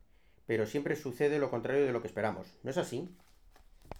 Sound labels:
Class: speech